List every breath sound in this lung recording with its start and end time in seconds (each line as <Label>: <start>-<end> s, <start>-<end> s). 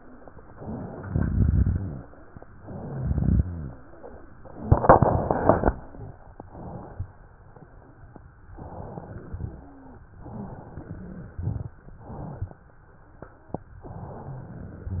Inhalation: 0.47-1.04 s, 2.54-2.94 s, 6.47-7.19 s, 8.58-9.30 s, 10.21-11.38 s
Exhalation: 1.02-2.03 s, 2.94-3.81 s, 9.32-10.04 s, 11.40-11.80 s
Wheeze: 9.53-10.04 s, 10.21-10.61 s
Rhonchi: 1.02-2.03 s
Crackles: 2.94-3.81 s, 11.40-11.80 s